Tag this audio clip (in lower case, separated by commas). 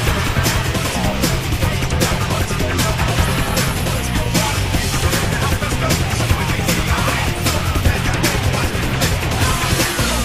music